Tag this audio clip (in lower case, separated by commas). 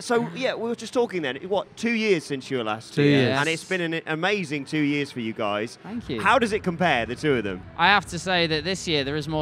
speech